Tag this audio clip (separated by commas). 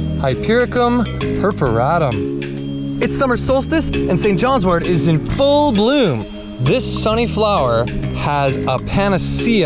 Music, Speech